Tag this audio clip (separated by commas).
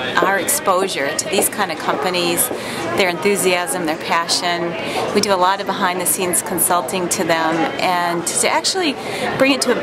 Speech